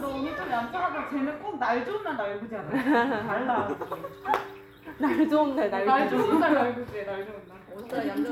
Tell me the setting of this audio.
crowded indoor space